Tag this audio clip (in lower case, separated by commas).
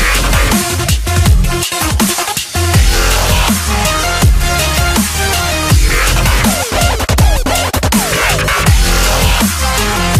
dubstep